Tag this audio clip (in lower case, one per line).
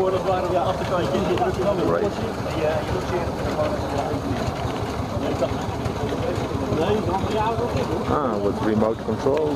speech